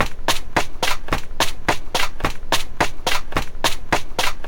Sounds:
Run

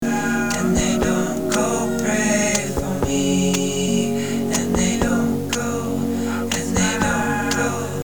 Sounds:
Human voice

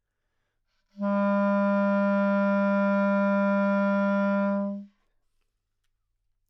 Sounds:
Wind instrument, Music, Musical instrument

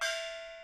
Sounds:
Gong, Music, Musical instrument, Percussion

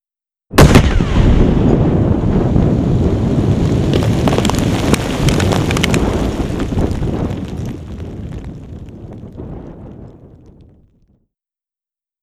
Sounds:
Explosion, Boom

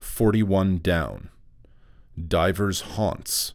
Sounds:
Human voice, man speaking, Speech

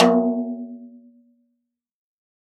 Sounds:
Percussion, Snare drum, Musical instrument, Drum, Music

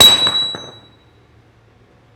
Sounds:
Tools, Hammer

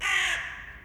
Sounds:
Crow, Wild animals, Animal, Bird

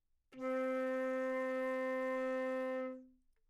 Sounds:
Music, Musical instrument, Wind instrument

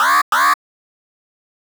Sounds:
Alarm

